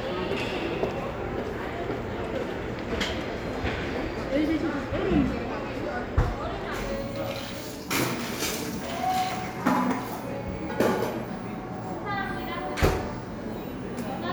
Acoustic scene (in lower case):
cafe